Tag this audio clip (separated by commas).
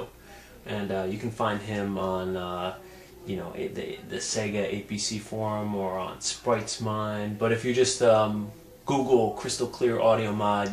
Speech